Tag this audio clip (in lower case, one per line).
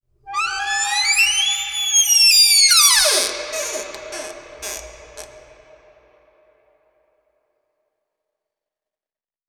door
home sounds